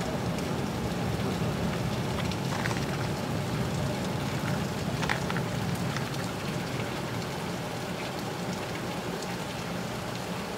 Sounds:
otter growling

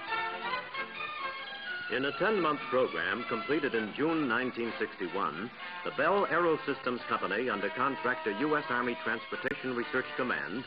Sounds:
music
speech

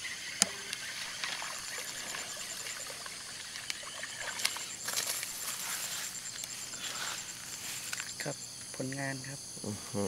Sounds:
animal
speech

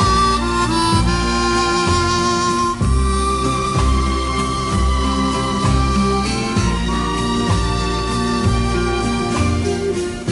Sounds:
playing harmonica

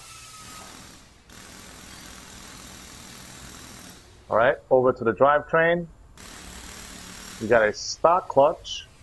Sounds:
speech

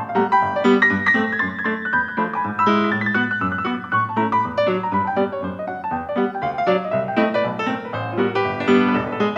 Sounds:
music

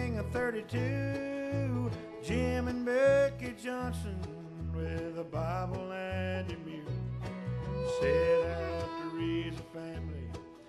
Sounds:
music

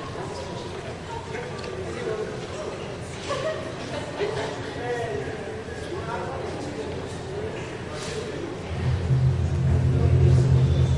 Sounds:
speech
music
percussion

